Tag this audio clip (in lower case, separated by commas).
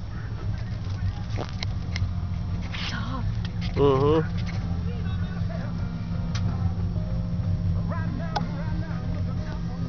outside, urban or man-made, vehicle, speech, music